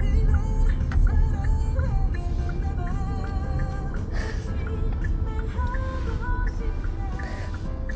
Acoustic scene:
car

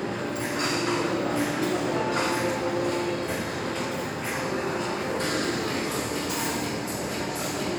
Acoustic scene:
restaurant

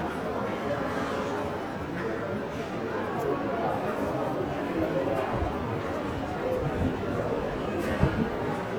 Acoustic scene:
crowded indoor space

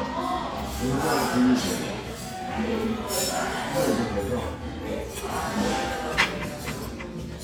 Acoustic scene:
restaurant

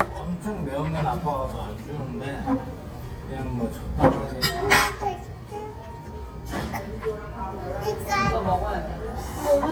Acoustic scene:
restaurant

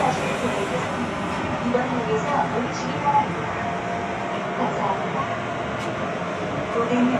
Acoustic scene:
subway train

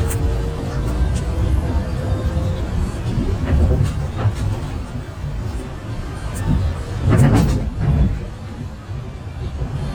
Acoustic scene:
bus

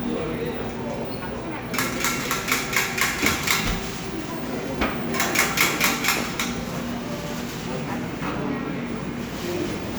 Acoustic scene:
cafe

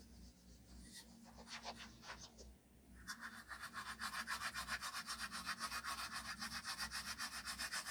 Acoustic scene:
restroom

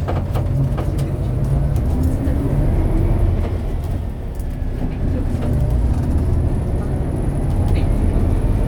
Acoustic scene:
bus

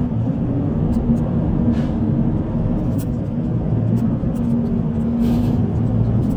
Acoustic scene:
bus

